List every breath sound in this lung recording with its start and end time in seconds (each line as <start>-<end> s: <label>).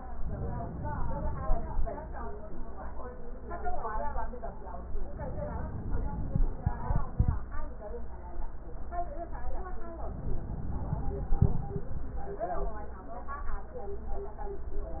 0.24-1.74 s: inhalation
5.11-6.52 s: inhalation
10.02-11.43 s: inhalation